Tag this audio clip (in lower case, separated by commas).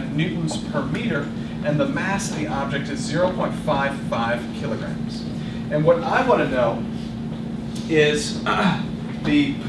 speech